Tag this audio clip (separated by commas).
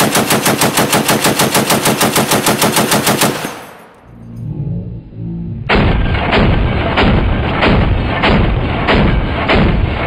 gunfire, machine gun shooting, Machine gun